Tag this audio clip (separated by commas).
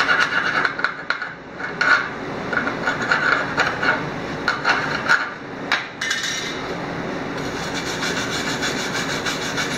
arc welding